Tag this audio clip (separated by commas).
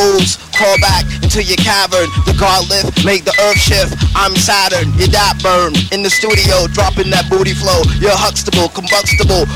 Music